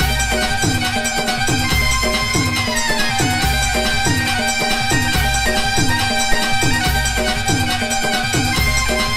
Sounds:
music

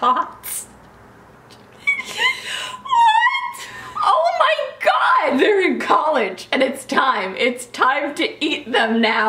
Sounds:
speech, shout

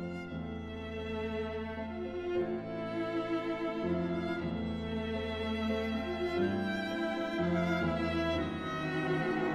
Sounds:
musical instrument, cello, fiddle, music

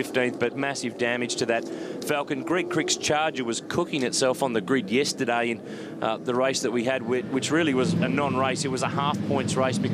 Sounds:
vehicle, motor vehicle (road), speech

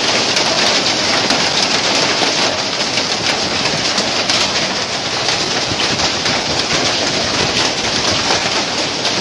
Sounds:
hail

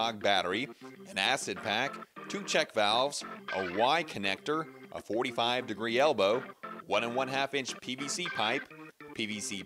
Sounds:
speech, music

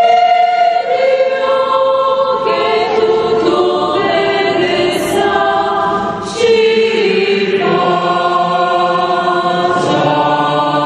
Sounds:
chant, singing, choir

